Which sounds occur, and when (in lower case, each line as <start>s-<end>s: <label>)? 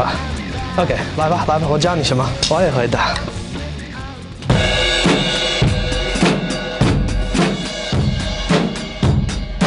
0.0s-9.6s: music
0.0s-0.7s: male singing
0.6s-1.0s: male speech
1.1s-3.3s: male speech
2.2s-4.4s: male singing